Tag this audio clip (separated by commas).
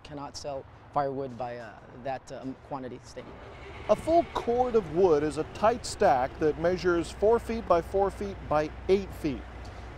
Speech